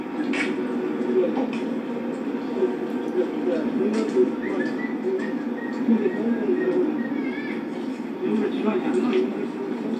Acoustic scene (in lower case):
park